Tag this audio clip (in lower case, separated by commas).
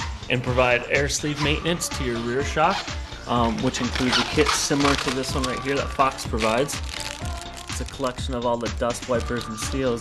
music, speech